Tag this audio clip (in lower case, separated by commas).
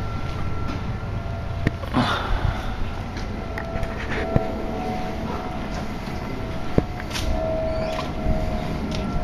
heavy engine (low frequency)